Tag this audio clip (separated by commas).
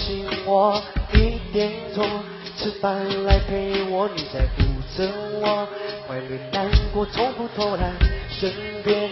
Music